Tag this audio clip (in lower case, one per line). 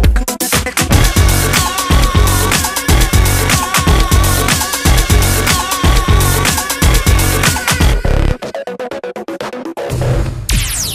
music